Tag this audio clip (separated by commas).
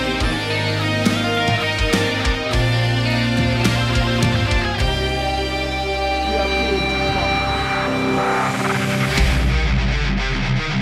Exciting music, Speech, Music